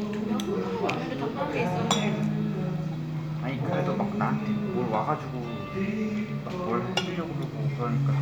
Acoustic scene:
crowded indoor space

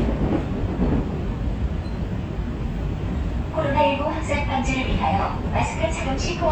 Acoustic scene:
subway train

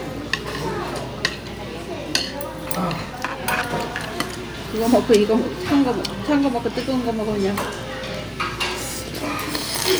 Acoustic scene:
restaurant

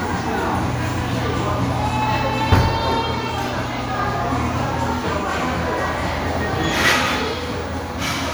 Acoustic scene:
crowded indoor space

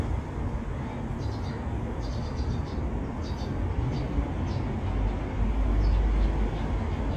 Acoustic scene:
residential area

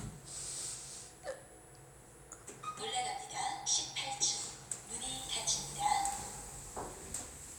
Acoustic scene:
elevator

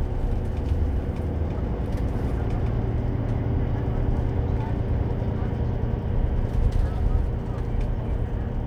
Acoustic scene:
bus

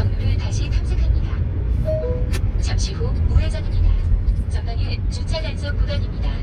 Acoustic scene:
car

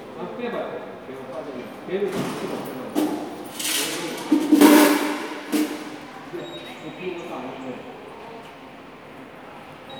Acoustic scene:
subway station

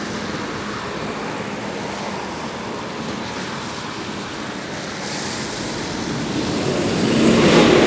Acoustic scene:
street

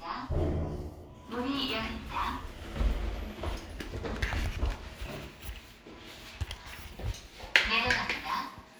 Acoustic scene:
elevator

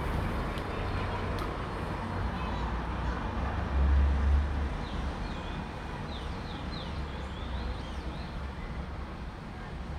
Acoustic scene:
street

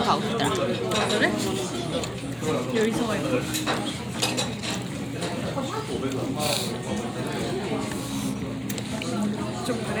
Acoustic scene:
crowded indoor space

